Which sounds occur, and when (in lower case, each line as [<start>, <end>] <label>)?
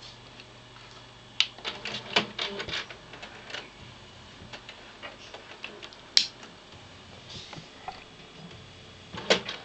[0.00, 0.44] generic impact sounds
[0.00, 9.64] mechanisms
[0.71, 0.98] generic impact sounds
[1.36, 3.67] generic impact sounds
[4.25, 5.91] generic impact sounds
[6.14, 6.48] generic impact sounds
[6.66, 6.78] generic impact sounds
[7.24, 8.04] generic impact sounds
[8.32, 8.60] generic impact sounds
[9.10, 9.60] generic impact sounds